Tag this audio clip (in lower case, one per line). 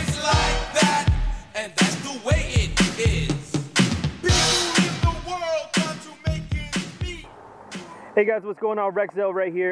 music
speech